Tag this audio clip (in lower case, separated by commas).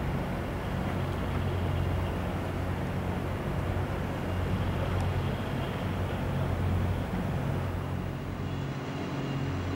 speech, outside, urban or man-made